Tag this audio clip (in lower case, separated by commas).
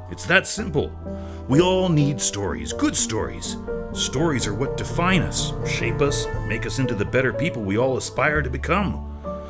music, speech